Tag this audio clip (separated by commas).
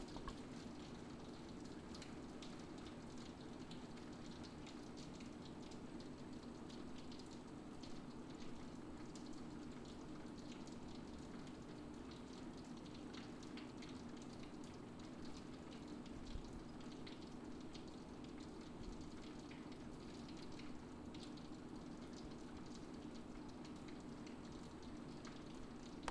Rain, Water